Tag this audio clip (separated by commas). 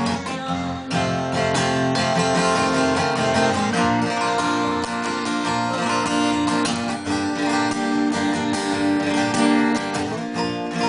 Musical instrument, Plucked string instrument, Music, Guitar, Acoustic guitar, Strum